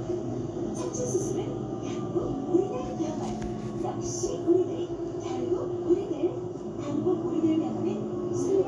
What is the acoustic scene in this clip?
bus